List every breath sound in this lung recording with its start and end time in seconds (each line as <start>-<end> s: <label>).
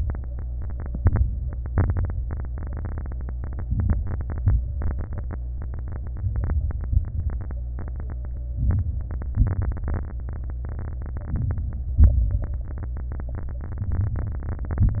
0.95-1.51 s: crackles
0.96-1.52 s: inhalation
1.69-2.25 s: exhalation
1.69-2.25 s: crackles
3.67-4.22 s: inhalation
3.67-4.23 s: crackles
4.25-4.81 s: exhalation
4.25-4.82 s: crackles
6.16-6.87 s: crackles
6.18-6.90 s: inhalation
6.89-7.59 s: crackles
6.90-7.61 s: exhalation
8.57-9.28 s: crackles
8.59-9.30 s: inhalation
9.34-10.04 s: crackles
9.34-10.05 s: exhalation
11.32-11.94 s: crackles
11.33-11.96 s: inhalation
12.00-12.62 s: crackles
12.00-12.63 s: exhalation
13.81-14.53 s: crackles
13.84-14.55 s: inhalation
14.53-15.00 s: exhalation
14.53-15.00 s: crackles